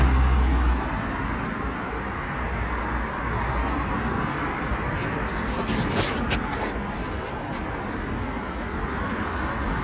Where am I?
on a street